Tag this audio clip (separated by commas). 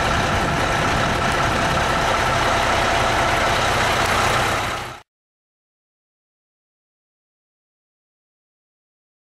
Truck, Vehicle